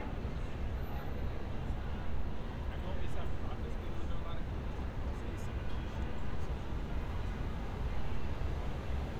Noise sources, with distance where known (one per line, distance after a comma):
person or small group talking, far